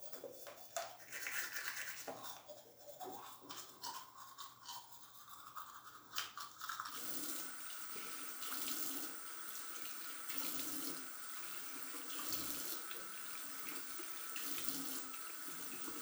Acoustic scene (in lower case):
restroom